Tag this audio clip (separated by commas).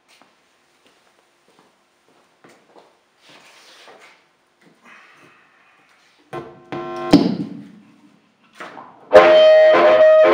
Music, Harmonica